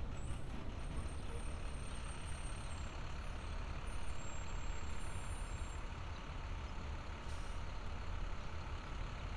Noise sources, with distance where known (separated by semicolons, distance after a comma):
engine of unclear size, near